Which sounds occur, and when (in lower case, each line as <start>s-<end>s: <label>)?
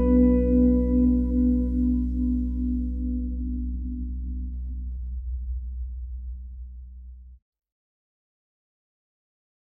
0.0s-7.4s: music